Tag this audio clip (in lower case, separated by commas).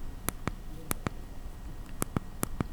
home sounds, typing